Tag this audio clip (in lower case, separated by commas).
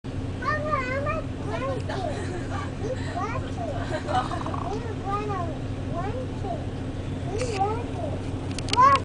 speech